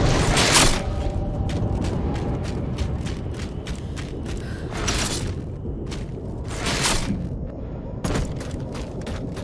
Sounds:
inside a large room or hall, Boom

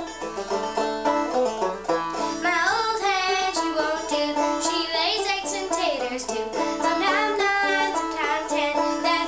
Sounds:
Music

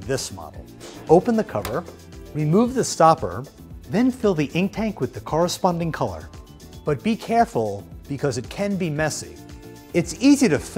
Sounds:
Music, Speech

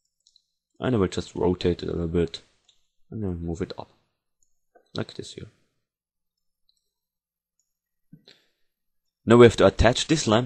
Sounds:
Speech

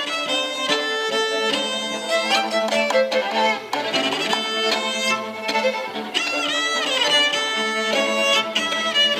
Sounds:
Bowed string instrument, fiddle, Cello, Music

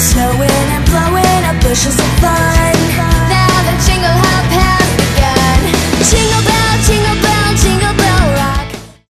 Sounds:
Music

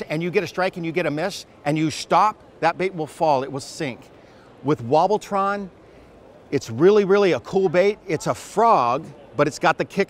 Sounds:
Speech

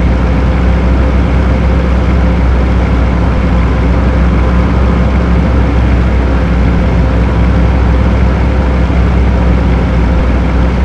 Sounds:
Truck, Vehicle

